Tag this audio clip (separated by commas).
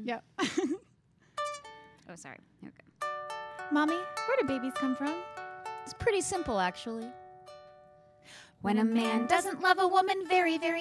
Music, Speech